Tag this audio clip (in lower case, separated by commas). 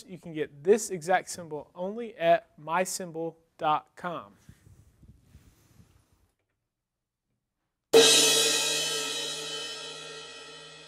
music, speech